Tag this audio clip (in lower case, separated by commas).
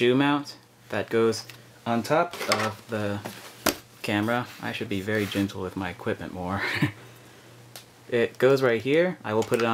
speech